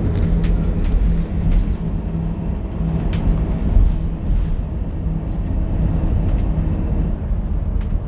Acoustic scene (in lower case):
bus